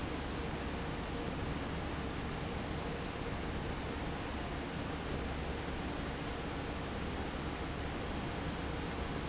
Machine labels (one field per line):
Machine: fan